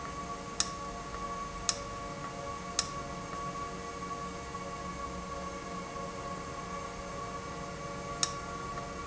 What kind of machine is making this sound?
valve